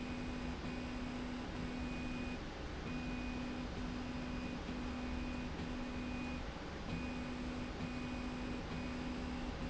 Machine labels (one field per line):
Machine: slide rail